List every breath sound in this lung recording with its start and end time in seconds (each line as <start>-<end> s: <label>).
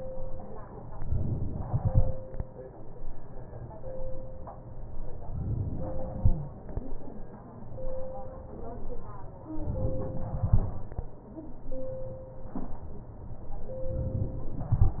1.03-1.65 s: inhalation
1.65-2.59 s: exhalation